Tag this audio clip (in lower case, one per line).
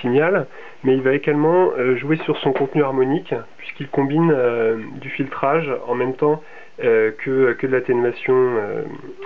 speech